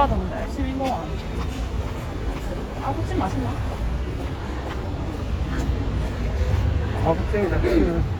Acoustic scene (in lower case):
street